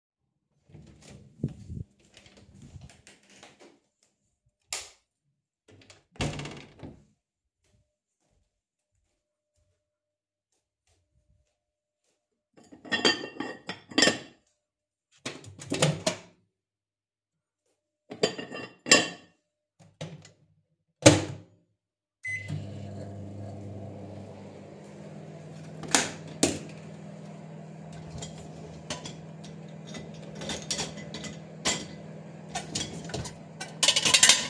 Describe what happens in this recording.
I opened the door turned the light switch on, walked towards the microwave, took a pot of food opened the microwave and put the pot in the microwave then I closed it, then I started unloading the dishwasher.